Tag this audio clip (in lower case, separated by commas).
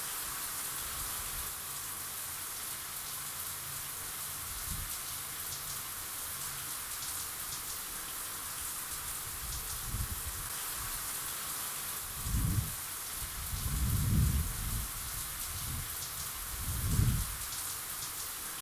rain, water, wind